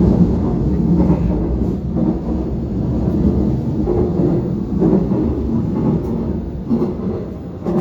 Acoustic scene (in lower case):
subway train